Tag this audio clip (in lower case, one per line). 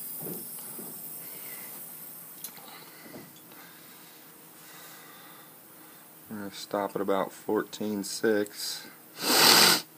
speech